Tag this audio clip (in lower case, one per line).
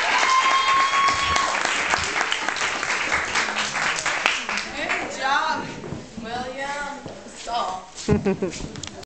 speech